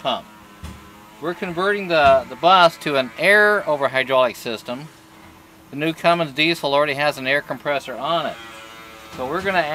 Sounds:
speech
vehicle

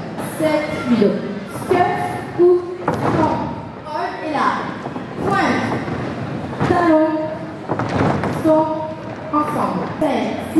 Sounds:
inside a large room or hall
speech

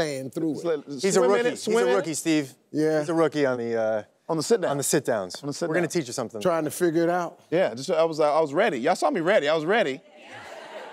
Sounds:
speech

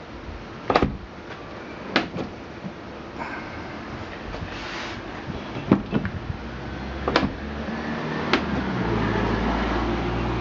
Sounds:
opening or closing car doors

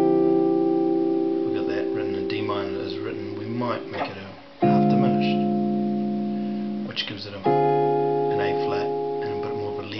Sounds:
music
plucked string instrument
guitar
speech
acoustic guitar
musical instrument

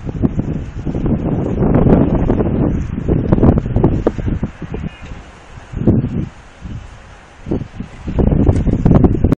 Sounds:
wind

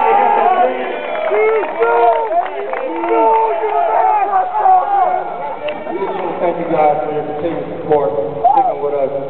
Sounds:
speech
man speaking
narration

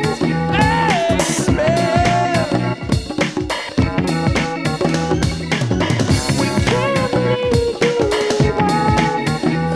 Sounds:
music

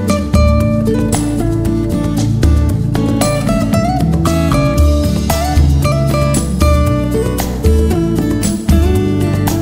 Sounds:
music

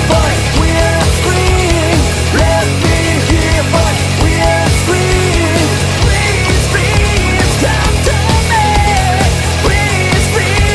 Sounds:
music
angry music

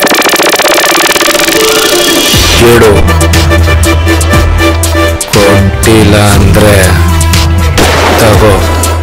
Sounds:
speech
music
gunshot

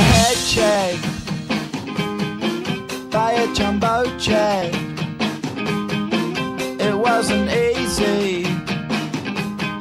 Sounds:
music

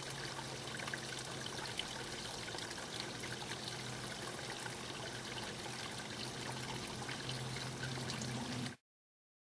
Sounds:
pour

